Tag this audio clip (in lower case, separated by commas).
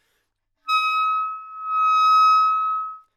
musical instrument, woodwind instrument, music